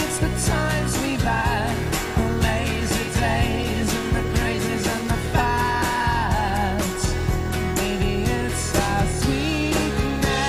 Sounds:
independent music, musical instrument, music

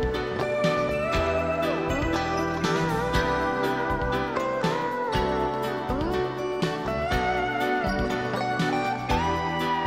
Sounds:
music

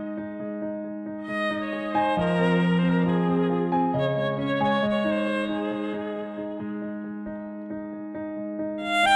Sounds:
fiddle, musical instrument, music

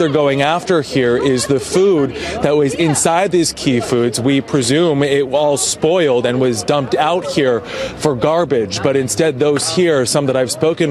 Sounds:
speech

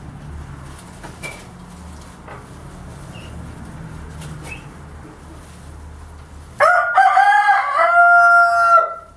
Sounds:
livestock, rooster, bird

